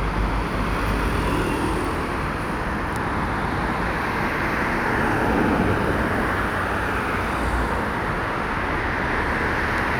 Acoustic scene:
street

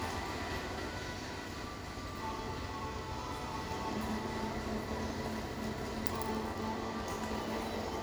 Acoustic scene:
cafe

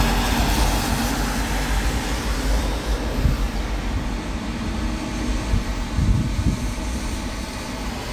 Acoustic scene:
street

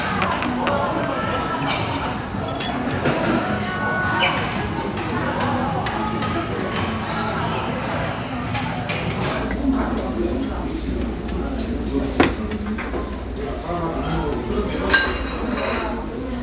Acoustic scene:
restaurant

